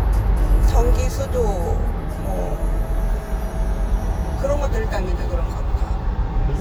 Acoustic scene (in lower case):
car